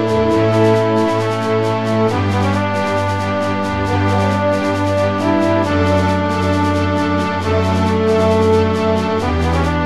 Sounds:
Music

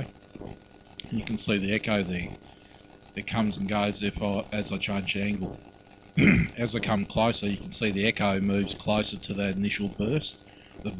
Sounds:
Speech

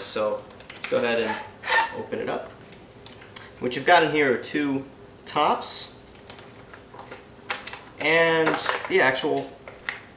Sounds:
Speech

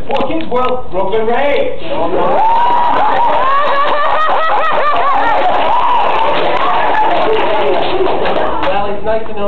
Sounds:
Speech, Crowd

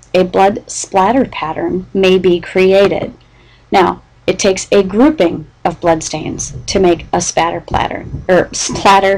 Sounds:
Speech

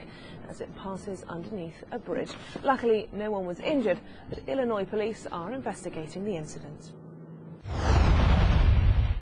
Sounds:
Speech

